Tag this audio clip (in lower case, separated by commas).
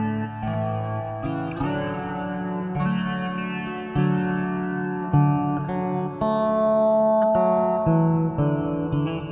guitar, musical instrument, strum, music, plucked string instrument, bass guitar